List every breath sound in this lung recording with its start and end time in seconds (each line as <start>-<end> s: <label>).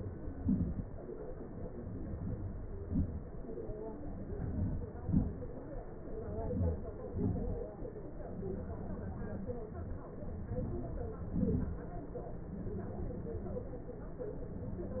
2.05-2.60 s: inhalation
2.90-3.31 s: exhalation
4.38-4.91 s: inhalation
5.07-5.50 s: exhalation
6.38-6.94 s: inhalation
7.17-7.57 s: exhalation
10.56-11.20 s: inhalation
11.36-11.87 s: exhalation